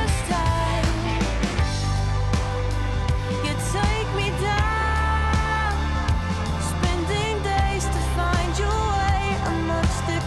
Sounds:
Music

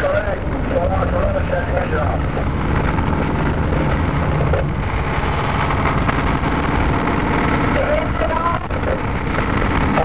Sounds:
Vehicle, Speech

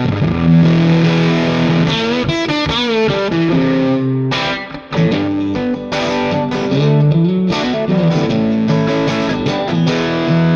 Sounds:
Electric guitar, Music

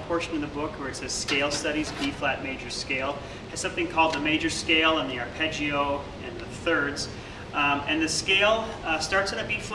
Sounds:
Speech

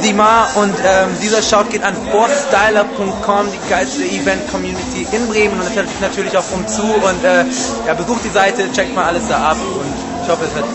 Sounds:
Speech

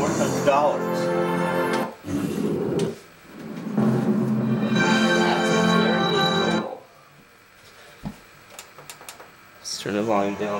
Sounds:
Music, Speech

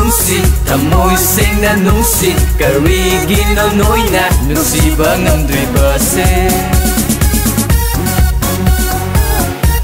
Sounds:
Singing, Music

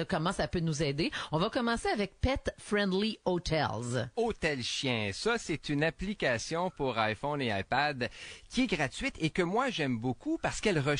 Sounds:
Speech

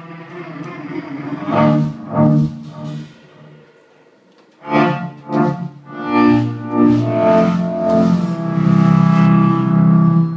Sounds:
Bowed string instrument, Double bass, Cello

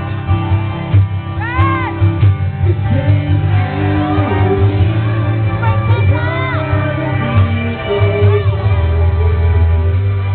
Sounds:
Music, Male singing, Speech

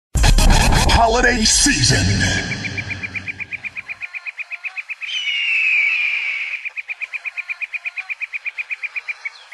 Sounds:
Bird vocalization, Music

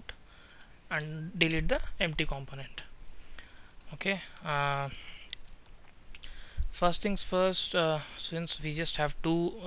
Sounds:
Speech

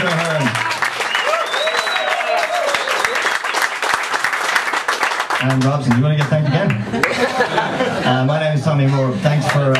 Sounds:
Speech

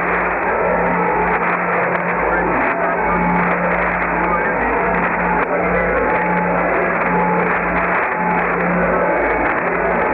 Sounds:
White noise, Cacophony

